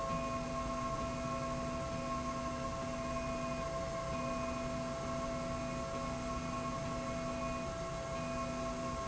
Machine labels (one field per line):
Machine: slide rail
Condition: normal